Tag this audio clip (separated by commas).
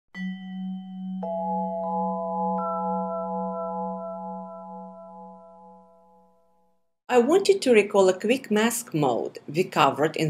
Music, Speech